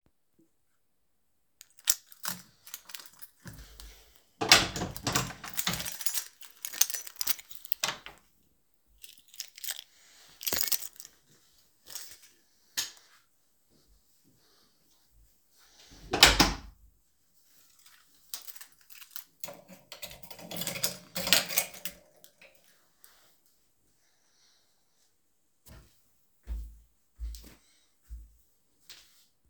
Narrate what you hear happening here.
I grabed my keys, and opened the door, threw and caught the keys in the air. after that walked a bit and closed the door behind me and locked it